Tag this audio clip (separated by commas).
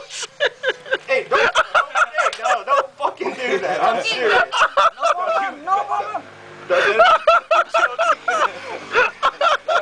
Animal, Speech, Snake, inside a small room